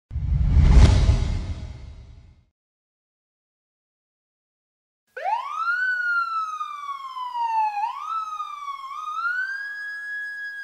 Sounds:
police car (siren)

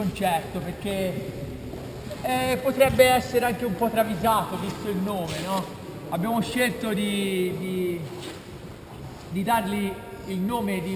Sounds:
speech

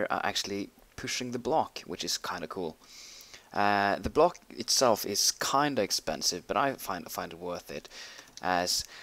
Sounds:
speech

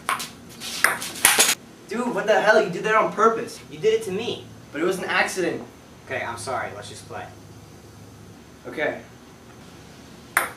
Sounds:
speech, ping

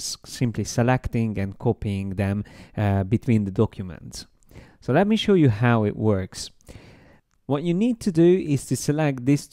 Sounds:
speech

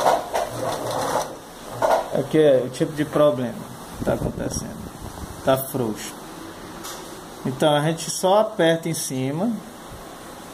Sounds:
sewing machine, speech

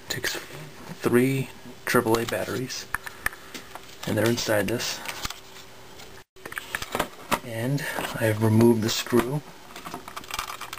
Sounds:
speech

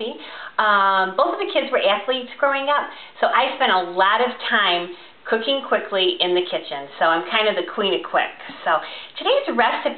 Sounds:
speech

